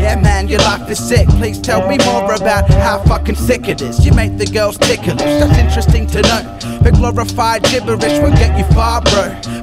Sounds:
Music

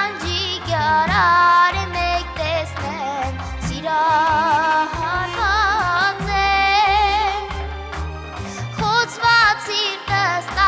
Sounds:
Music of Asia, Music

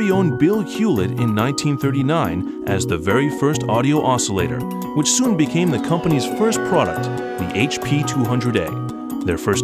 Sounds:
Speech, Music

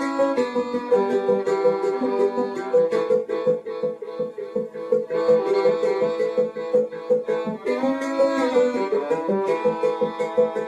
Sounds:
Violin, Music, Musical instrument

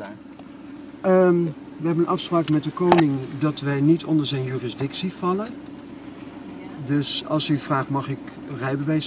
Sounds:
Car, Vehicle, Speech

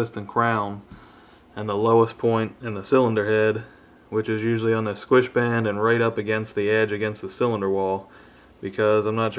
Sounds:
Speech

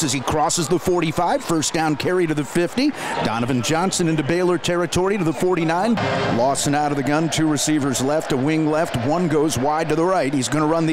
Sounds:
Speech

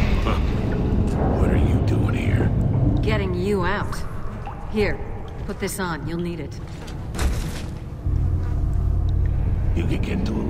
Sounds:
Speech

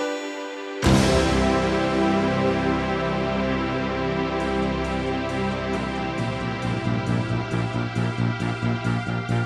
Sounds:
Music

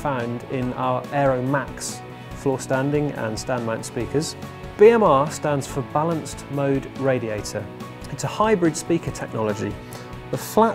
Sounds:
Music, Speech

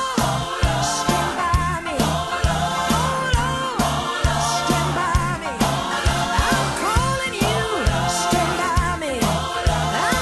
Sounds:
Singing, Soul music, Music

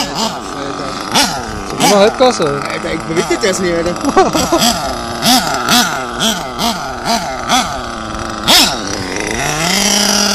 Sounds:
revving, Speech, Vehicle

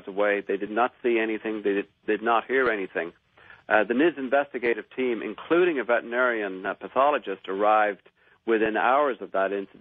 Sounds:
Speech

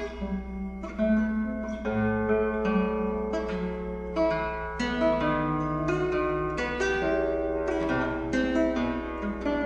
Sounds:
Musical instrument, Music

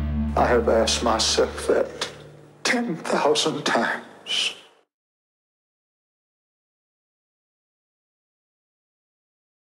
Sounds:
Music, Speech

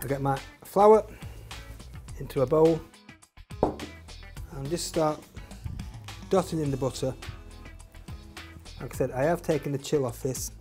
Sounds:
Speech, Music

